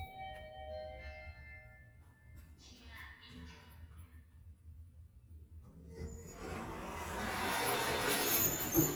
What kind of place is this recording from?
elevator